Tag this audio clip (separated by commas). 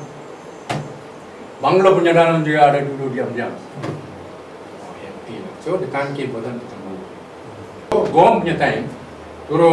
Speech